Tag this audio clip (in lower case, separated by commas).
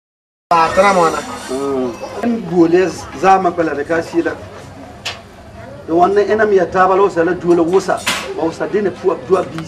speech